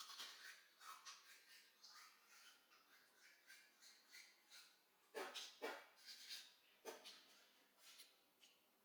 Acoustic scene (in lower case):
restroom